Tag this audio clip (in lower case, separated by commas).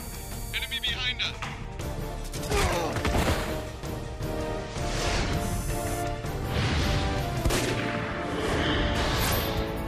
speech, music